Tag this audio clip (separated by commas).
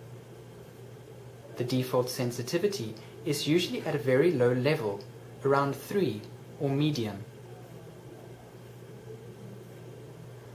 Speech